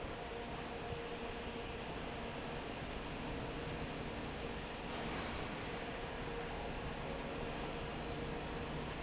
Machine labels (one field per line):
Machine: fan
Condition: normal